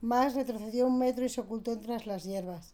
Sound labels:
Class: speech